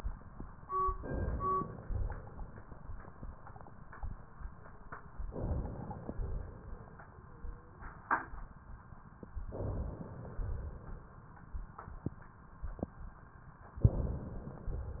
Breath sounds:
0.92-1.88 s: inhalation
1.88-2.58 s: exhalation
5.24-6.09 s: inhalation
6.09-7.09 s: exhalation
9.45-10.29 s: inhalation
10.29-11.25 s: exhalation
13.80-14.76 s: inhalation
14.76-15.00 s: exhalation

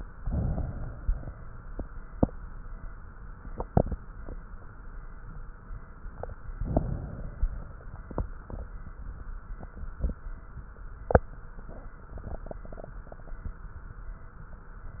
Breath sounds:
0.00-1.00 s: inhalation
0.94-2.31 s: exhalation
0.94-2.31 s: crackles
6.35-7.30 s: crackles
6.39-7.34 s: inhalation
7.32-8.90 s: exhalation
7.32-8.90 s: crackles

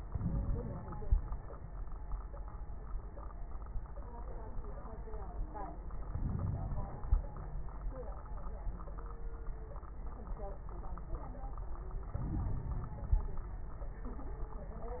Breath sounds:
0.06-1.50 s: inhalation
0.06-1.50 s: crackles
6.09-7.18 s: inhalation
6.09-7.18 s: crackles
12.16-13.73 s: inhalation
12.16-13.73 s: crackles

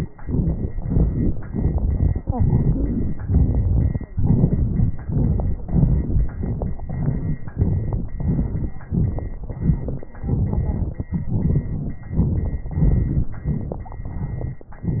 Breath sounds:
0.18-0.73 s: crackles
0.18-0.78 s: inhalation
0.75-1.46 s: exhalation
0.75-1.46 s: crackles
1.47-2.26 s: crackles
1.48-2.29 s: inhalation
2.28-3.22 s: exhalation
3.20-4.13 s: inhalation
3.23-4.12 s: crackles
4.11-5.04 s: exhalation
4.13-5.00 s: crackles
5.01-5.61 s: crackles
5.05-5.64 s: inhalation
5.64-6.35 s: exhalation
6.35-6.88 s: inhalation
6.35-6.88 s: crackles
6.89-7.39 s: crackles
6.89-7.44 s: exhalation
7.42-8.16 s: inhalation
8.17-8.88 s: exhalation
8.17-8.88 s: crackles
8.86-9.50 s: inhalation
8.88-9.52 s: crackles
9.50-10.12 s: exhalation
9.53-10.11 s: crackles
10.14-11.08 s: crackles
10.14-11.11 s: inhalation
11.11-11.97 s: exhalation
11.11-11.97 s: crackles
11.98-12.67 s: inhalation
11.98-12.67 s: crackles
12.69-13.41 s: exhalation
12.69-13.41 s: crackles

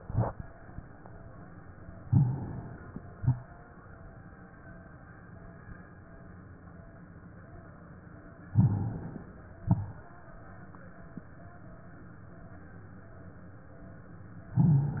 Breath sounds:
2.03-2.43 s: crackles
2.03-2.92 s: inhalation
3.17-3.61 s: exhalation
8.52-9.09 s: crackles
8.60-9.49 s: inhalation
9.66-10.10 s: exhalation

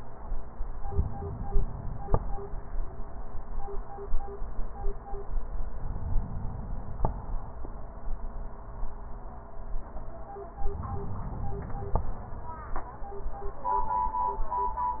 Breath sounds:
0.88-2.49 s: inhalation
5.66-7.67 s: inhalation
10.54-12.23 s: inhalation

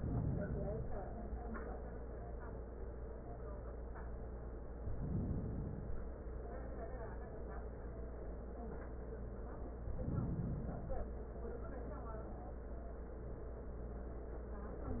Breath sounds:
0.00-1.09 s: inhalation
4.72-6.28 s: inhalation
9.79-11.16 s: inhalation

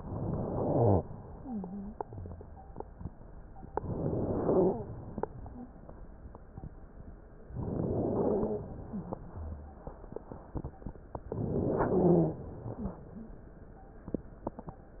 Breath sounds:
1.32-1.97 s: wheeze
3.72-4.78 s: inhalation
4.36-4.82 s: stridor
7.54-8.60 s: inhalation
8.14-8.60 s: stridor
11.34-12.40 s: inhalation
11.90-12.36 s: stridor
12.77-13.37 s: wheeze

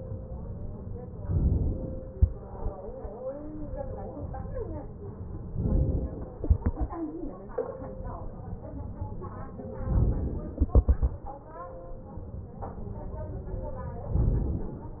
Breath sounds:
1.28-2.18 s: inhalation
5.60-6.50 s: inhalation
9.83-10.60 s: inhalation
10.60-11.80 s: exhalation

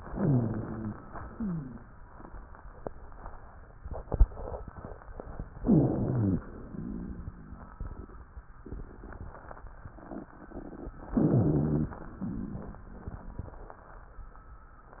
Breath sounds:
0.10-0.96 s: inhalation
0.13-0.96 s: rhonchi
1.03-2.02 s: exhalation
1.38-1.80 s: wheeze
5.59-6.45 s: inhalation
5.63-6.38 s: wheeze
5.65-6.41 s: rhonchi
6.48-7.78 s: exhalation
6.72-7.77 s: rhonchi
11.14-11.98 s: inhalation
11.15-11.89 s: rhonchi
11.98-13.88 s: exhalation

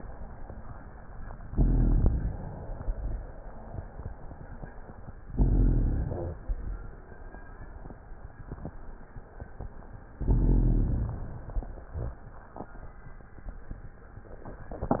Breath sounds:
1.48-2.51 s: rhonchi
1.50-2.52 s: inhalation
5.29-6.32 s: rhonchi
5.33-6.36 s: inhalation
10.19-11.21 s: inhalation
10.19-11.21 s: rhonchi

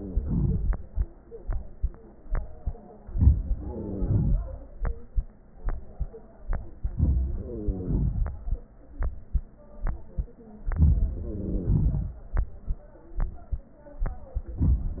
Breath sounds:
0.00-0.26 s: wheeze
2.99-3.60 s: inhalation
3.55-4.38 s: wheeze
3.59-4.77 s: exhalation
6.80-7.33 s: inhalation
7.33-8.51 s: exhalation
7.34-8.14 s: wheeze
10.65-11.19 s: inhalation
11.10-12.12 s: wheeze
11.19-12.56 s: exhalation
14.44-15.00 s: inhalation

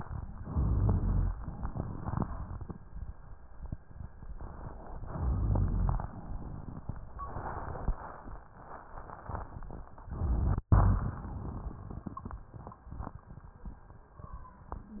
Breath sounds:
0.35-1.29 s: inhalation
0.53-1.40 s: rhonchi
1.32-2.75 s: exhalation
1.32-2.75 s: crackles
5.02-6.20 s: inhalation
5.17-6.08 s: rhonchi
6.12-7.14 s: exhalation
6.12-7.14 s: crackles

